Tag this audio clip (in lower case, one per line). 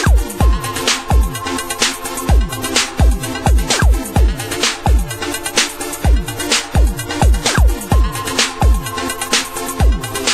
music